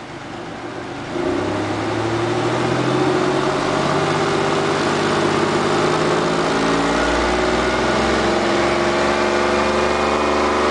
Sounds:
Heavy engine (low frequency), Vehicle

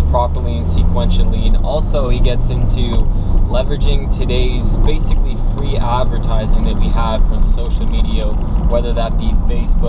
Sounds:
Speech

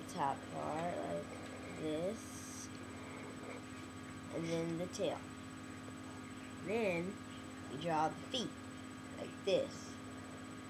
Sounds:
Speech

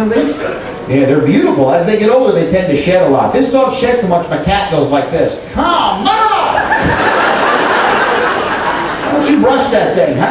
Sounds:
Speech

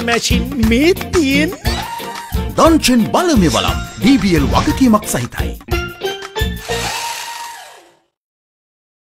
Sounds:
Music, Speech

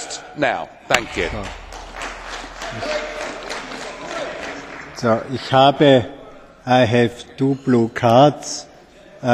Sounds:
Speech

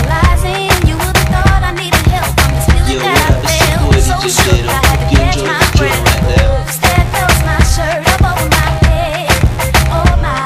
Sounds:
Music

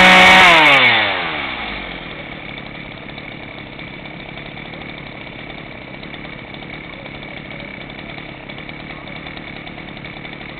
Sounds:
Chainsaw, chainsawing trees

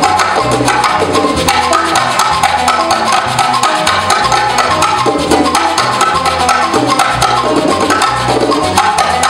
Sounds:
Music, Percussion

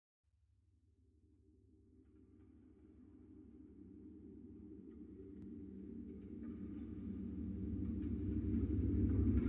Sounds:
Silence

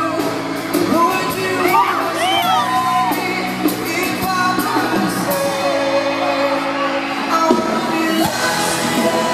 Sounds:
inside a large room or hall, Music, Singing, Speech

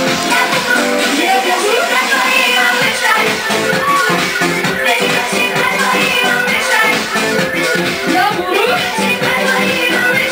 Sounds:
Music

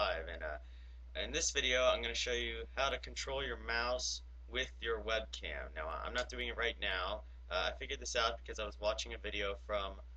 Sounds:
Speech

